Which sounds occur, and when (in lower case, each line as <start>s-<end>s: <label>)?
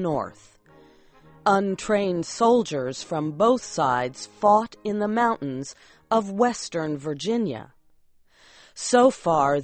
0.0s-0.3s: woman speaking
0.0s-9.6s: background noise
1.5s-2.2s: woman speaking
2.4s-2.9s: woman speaking
3.0s-3.5s: woman speaking
3.7s-4.2s: woman speaking
4.4s-5.6s: woman speaking
6.1s-7.7s: woman speaking
8.8s-9.6s: woman speaking